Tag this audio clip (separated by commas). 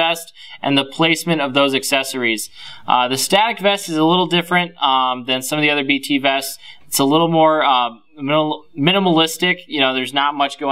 Speech